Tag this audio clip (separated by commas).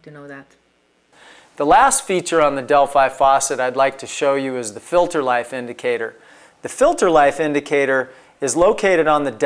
Speech